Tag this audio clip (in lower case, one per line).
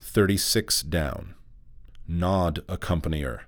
man speaking
speech
human voice